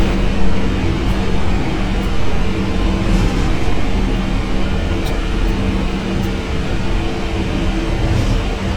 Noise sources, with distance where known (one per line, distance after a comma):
large-sounding engine
unidentified impact machinery, far
non-machinery impact, far